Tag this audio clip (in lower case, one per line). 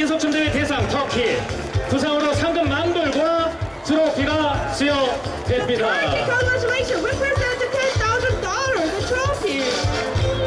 speech
music